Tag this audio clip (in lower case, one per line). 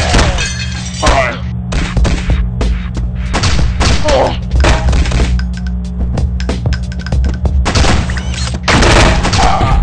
inside a large room or hall
music